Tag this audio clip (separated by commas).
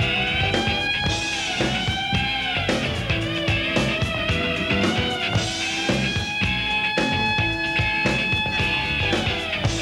Music